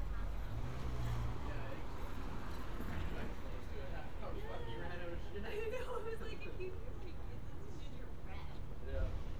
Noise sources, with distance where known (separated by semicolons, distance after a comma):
medium-sounding engine; person or small group talking, near